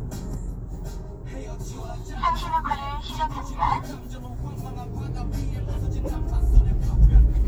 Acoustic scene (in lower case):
car